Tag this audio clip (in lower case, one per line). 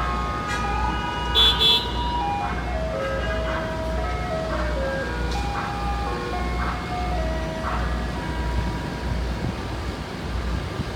car horn